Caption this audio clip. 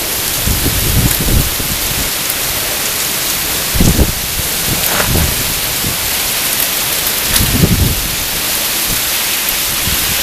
Rain falling hard, wind blowing